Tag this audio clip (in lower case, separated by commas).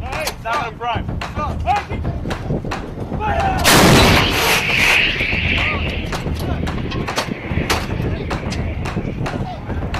firing cannon